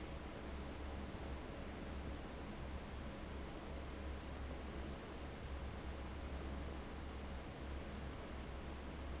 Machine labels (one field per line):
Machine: fan